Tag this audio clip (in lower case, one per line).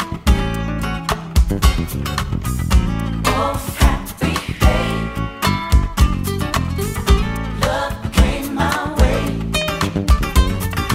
rhythm and blues
music